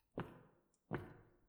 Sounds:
Walk

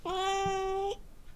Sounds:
Cat, pets, Animal

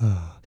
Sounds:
Respiratory sounds, Breathing

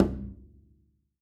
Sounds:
Bowed string instrument, Music, Musical instrument

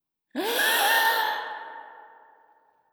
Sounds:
Respiratory sounds, Breathing

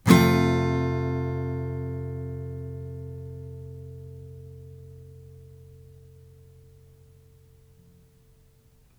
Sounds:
Musical instrument, Guitar, Acoustic guitar, Strum, Music, Plucked string instrument

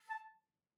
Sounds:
Wind instrument, Musical instrument, Music

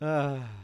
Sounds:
Human voice, Laughter

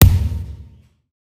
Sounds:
Thump

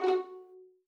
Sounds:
Music, Bowed string instrument, Musical instrument

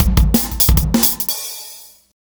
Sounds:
Bass drum, Snare drum, Musical instrument, Drum, Music, Percussion

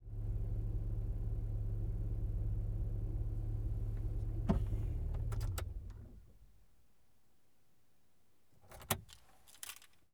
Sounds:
Vehicle, Motor vehicle (road)

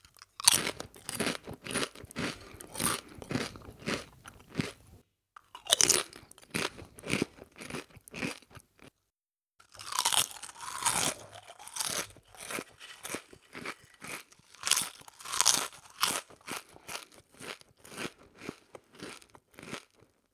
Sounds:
mastication

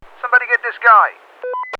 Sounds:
Human voice, man speaking, Speech

